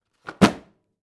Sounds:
thud

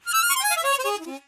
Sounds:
harmonica
musical instrument
music

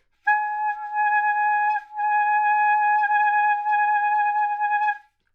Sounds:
woodwind instrument
musical instrument
music

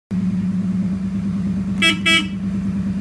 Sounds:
car horn
alarm
car
vehicle
motor vehicle (road)

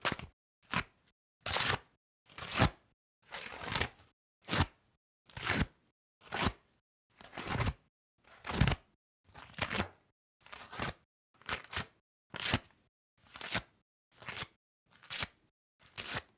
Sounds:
tearing

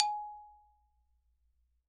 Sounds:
mallet percussion
musical instrument
music
xylophone
percussion

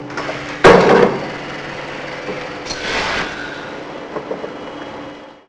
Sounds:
rail transport
vehicle
train

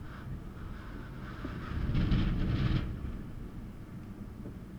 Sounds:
wind

